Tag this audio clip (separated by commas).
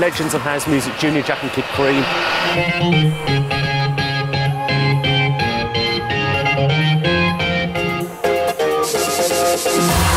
Speech, Electronic music, Music